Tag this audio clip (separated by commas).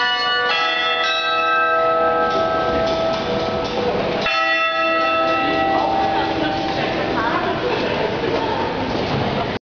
Speech